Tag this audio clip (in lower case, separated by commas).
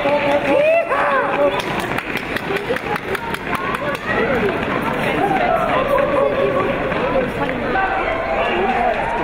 run, outside, urban or man-made, speech